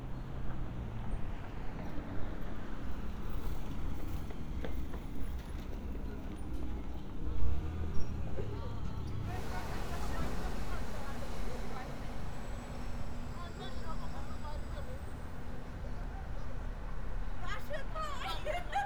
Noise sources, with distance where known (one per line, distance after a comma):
engine of unclear size
person or small group talking